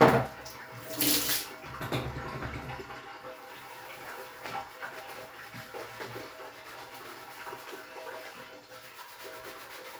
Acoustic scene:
restroom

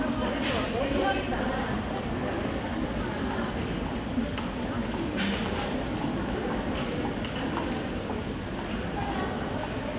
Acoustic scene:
crowded indoor space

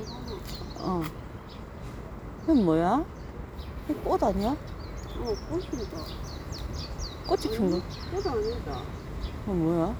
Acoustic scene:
park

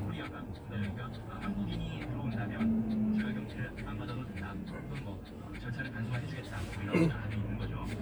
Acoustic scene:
car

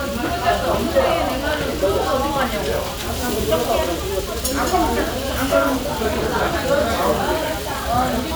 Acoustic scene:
restaurant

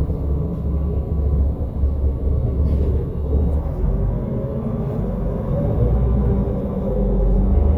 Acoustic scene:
bus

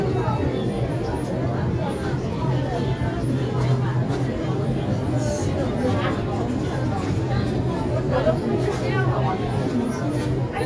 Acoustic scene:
crowded indoor space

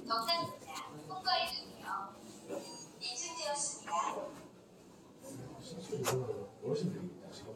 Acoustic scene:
elevator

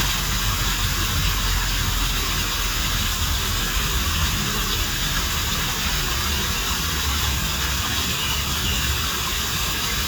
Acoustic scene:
park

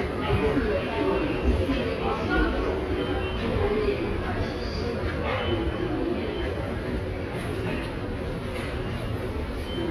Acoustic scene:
subway station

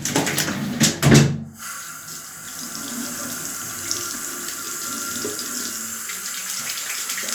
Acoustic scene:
restroom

